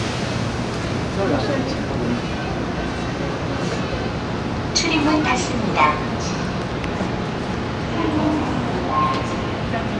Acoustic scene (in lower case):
subway train